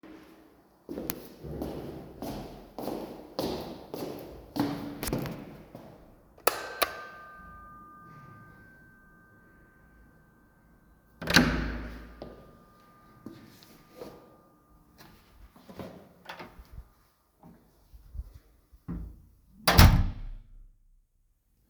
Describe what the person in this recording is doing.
The bell rang, then I opened and closed the door and walked a few steps in the hallway. The sequence resembles someone arriving and entering the home.